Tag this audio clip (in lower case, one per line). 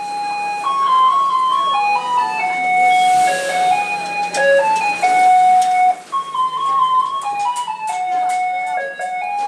music
ice cream van